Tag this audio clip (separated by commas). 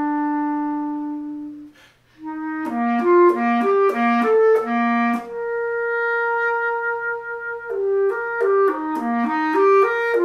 playing clarinet